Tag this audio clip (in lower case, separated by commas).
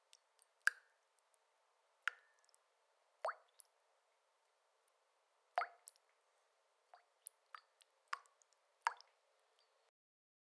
rain, water, liquid, drip, raindrop